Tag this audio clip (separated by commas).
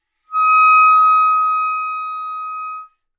Music, Wind instrument, Musical instrument